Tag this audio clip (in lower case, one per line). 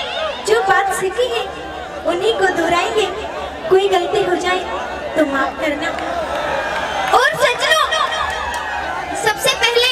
speech